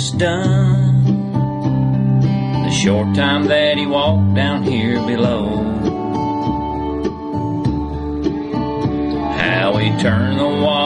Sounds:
Music

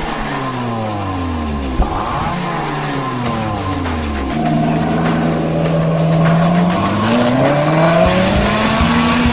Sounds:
Car, Music, Tire squeal, Vehicle

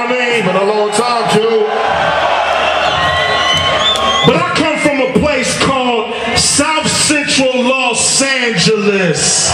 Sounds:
Speech

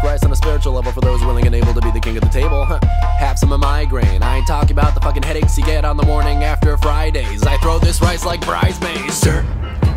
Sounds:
rapping

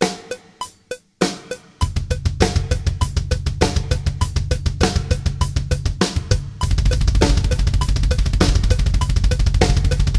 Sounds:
Drum kit, Percussion, Drum roll, Rimshot, Drum, Bass drum, Snare drum

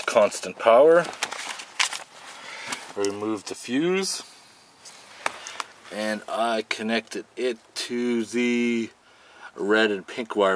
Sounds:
Speech

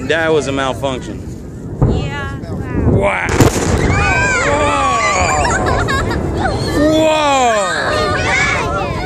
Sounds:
Speech, pop, Explosion

